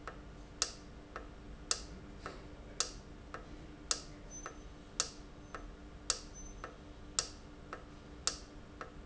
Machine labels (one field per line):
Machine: valve